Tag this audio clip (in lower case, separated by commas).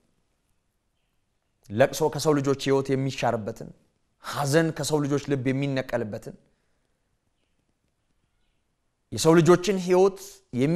speech, inside a small room, silence